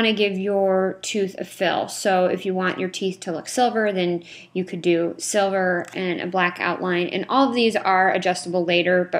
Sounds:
Speech

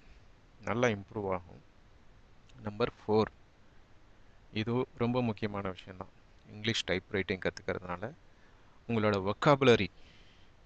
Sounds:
typing on typewriter

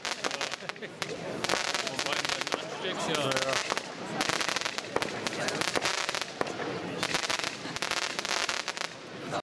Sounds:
Speech

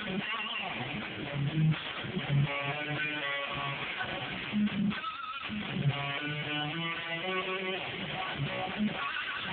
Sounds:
Plucked string instrument, Music, Musical instrument, Electric guitar

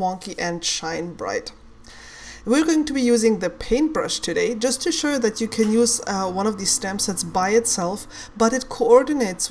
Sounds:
Speech

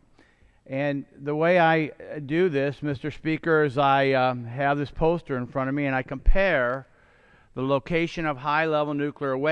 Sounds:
Speech

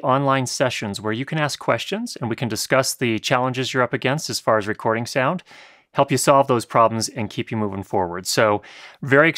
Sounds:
Speech

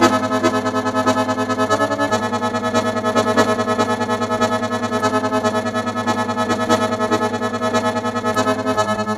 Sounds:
Music

